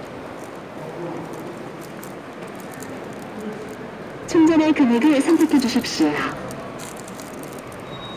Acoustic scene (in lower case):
subway station